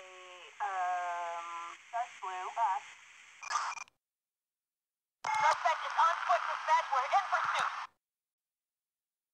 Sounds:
police radio chatter

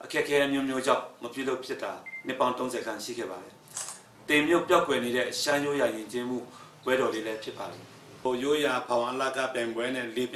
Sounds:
speech

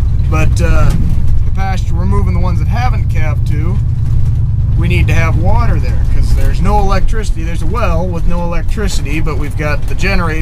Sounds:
speech, car, vehicle

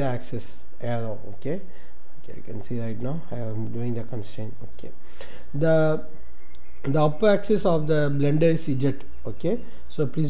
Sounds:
speech

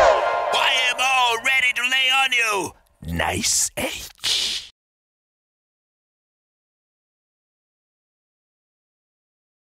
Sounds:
speech, music

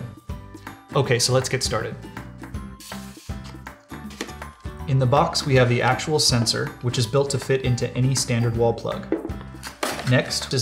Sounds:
music, speech

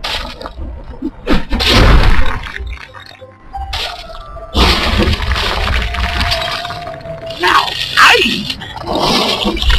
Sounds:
music, outside, urban or man-made, speech

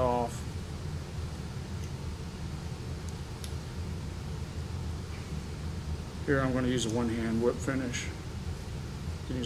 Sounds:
speech

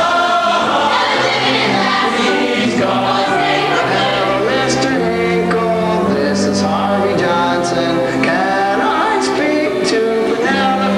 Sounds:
choir, singing, music

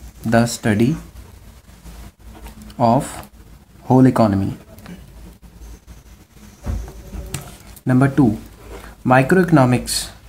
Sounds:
inside a small room, speech

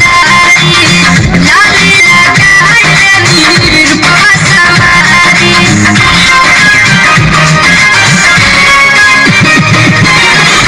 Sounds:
music

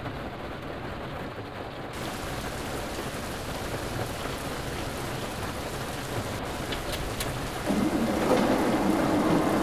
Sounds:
bus, vehicle

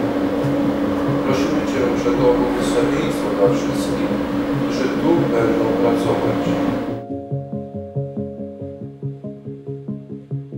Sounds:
music, speech

